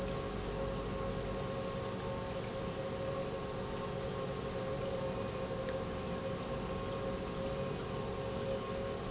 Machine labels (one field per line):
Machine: pump